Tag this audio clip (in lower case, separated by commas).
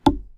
thud